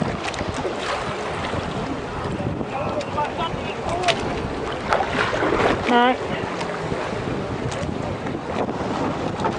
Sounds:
sailing ship, Speech

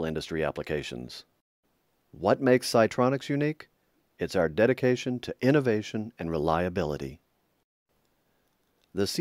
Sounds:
Speech

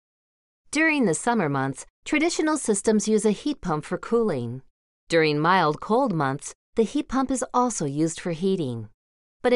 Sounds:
Speech

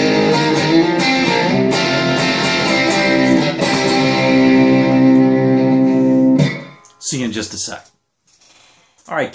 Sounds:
Plucked string instrument, Music, Musical instrument, Guitar, Speech, Electronic tuner

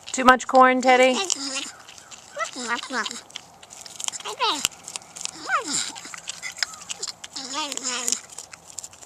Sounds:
Animal, Speech, outside, rural or natural

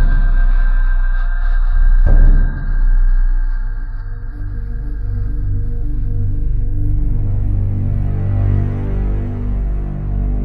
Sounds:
Music

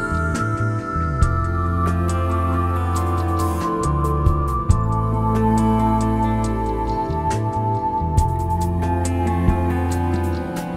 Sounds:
New-age music

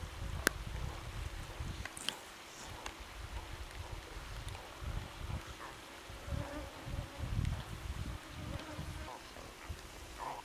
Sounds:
Animal, Wild animals

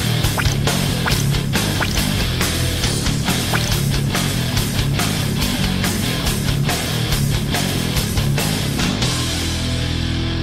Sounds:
Music

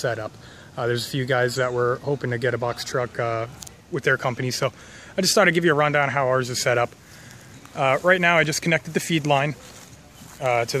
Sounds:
Speech

